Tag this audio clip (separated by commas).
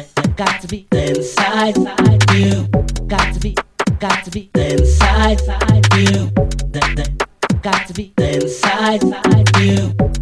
Music